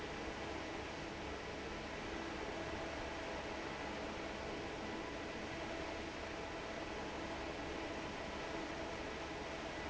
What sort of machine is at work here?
fan